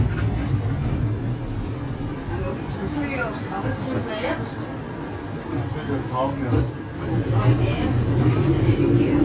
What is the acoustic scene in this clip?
bus